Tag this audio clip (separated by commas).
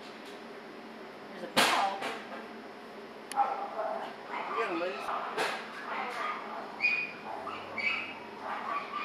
inside a small room, Animal, Speech, Dog, pets